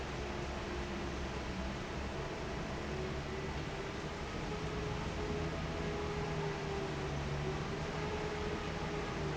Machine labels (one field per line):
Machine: fan